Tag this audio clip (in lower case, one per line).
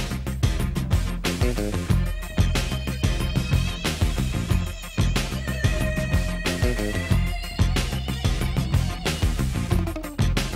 music